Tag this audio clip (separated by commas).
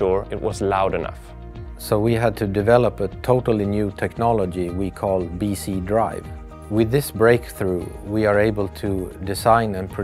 Music, Speech